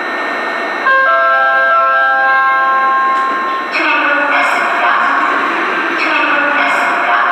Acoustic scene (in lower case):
subway station